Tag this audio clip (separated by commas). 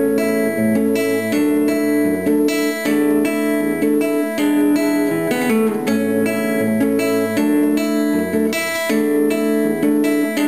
Guitar, Plucked string instrument, Music, Acoustic guitar, Musical instrument